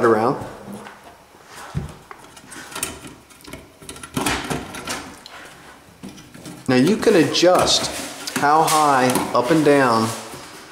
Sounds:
speech, inside a small room

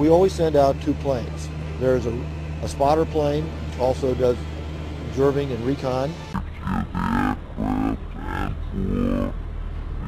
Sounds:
speech

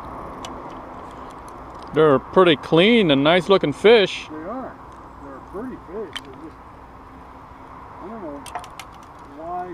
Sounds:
speech, outside, rural or natural

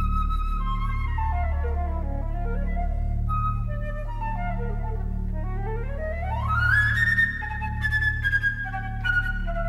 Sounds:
musical instrument, music, classical music, inside a large room or hall

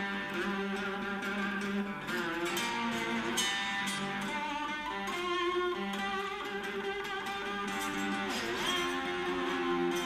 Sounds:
playing steel guitar

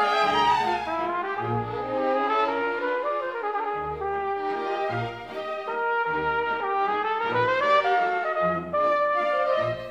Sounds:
classical music, music, trumpet, musical instrument, bowed string instrument, orchestra

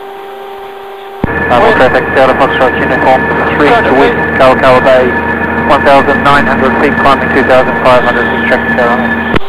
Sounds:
speech

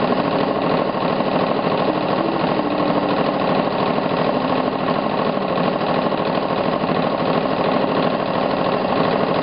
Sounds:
sewing machine, jackhammer

